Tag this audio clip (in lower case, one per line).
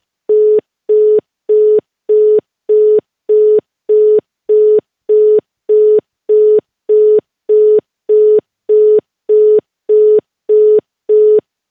alarm
telephone